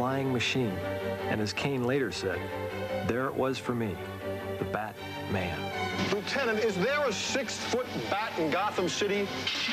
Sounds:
Speech, Music

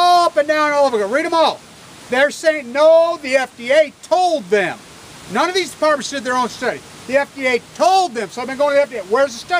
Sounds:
Speech

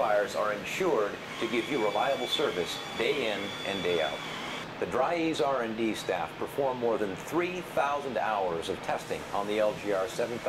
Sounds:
Speech

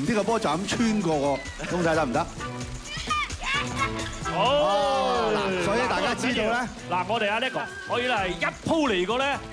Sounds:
shot football

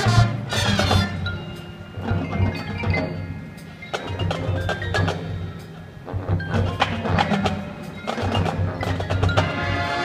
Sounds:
Tap, Music

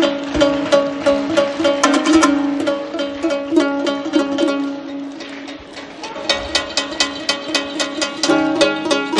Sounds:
Musical instrument, inside a large room or hall, Bowed string instrument, Music

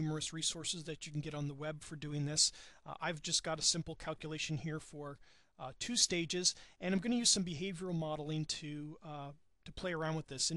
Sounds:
Speech

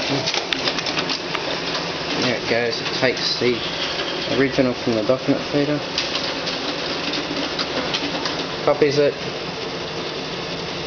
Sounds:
Printer, Speech

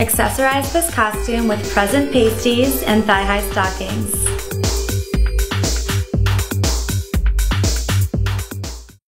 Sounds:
Music, Jingle (music), Speech

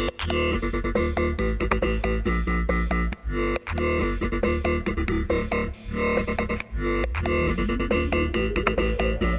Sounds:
Electronic music, Synthesizer, Musical instrument, House music, Music, Dubstep

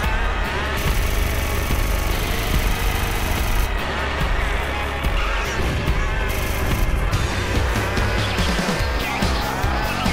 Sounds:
outside, urban or man-made, Music

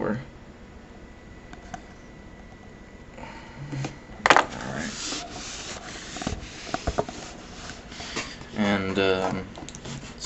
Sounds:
Speech

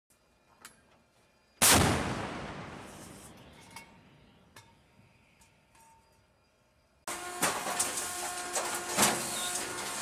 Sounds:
firing cannon

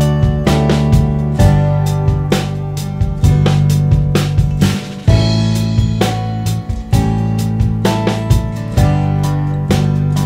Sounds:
running electric fan

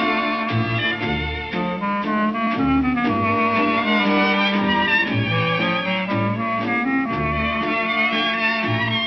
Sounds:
Violin

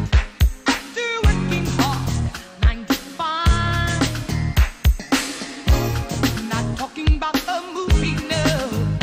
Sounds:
Music

